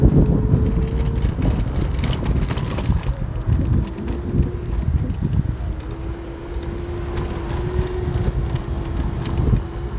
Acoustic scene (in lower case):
street